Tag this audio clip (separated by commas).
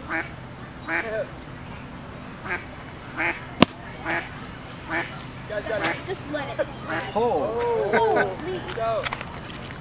Speech, Bird, Duck